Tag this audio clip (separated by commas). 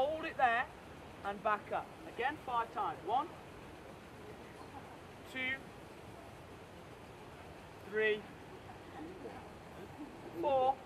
Speech, outside, rural or natural